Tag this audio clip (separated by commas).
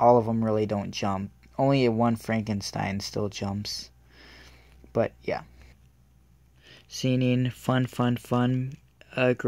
Speech